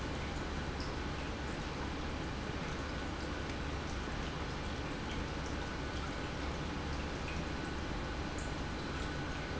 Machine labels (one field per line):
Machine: pump